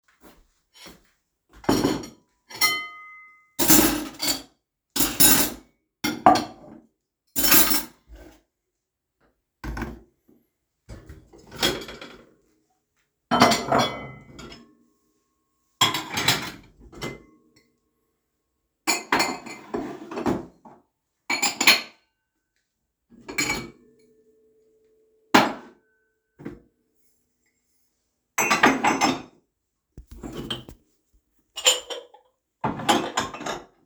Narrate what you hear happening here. I placed the dishes and cutlery into the shelf. Plates and utensils were organized and put away one after another.